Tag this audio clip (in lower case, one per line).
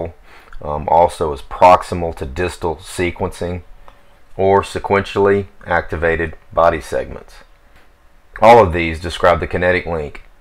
speech